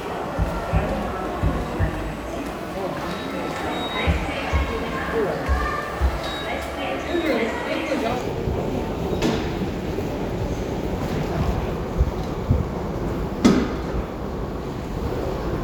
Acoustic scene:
subway station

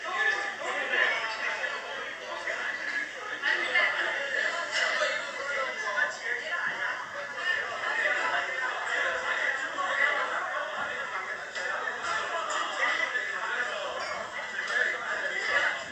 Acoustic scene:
crowded indoor space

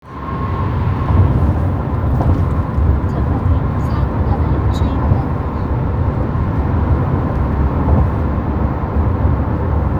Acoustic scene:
car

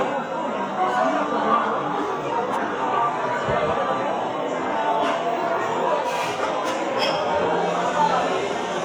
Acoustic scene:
cafe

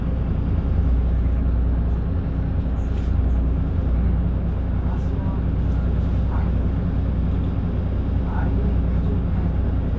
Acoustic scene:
bus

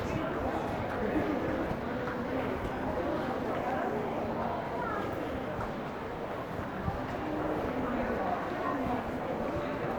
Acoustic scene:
crowded indoor space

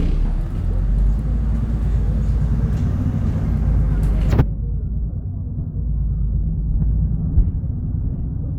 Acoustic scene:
bus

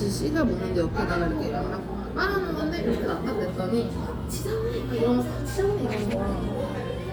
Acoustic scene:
cafe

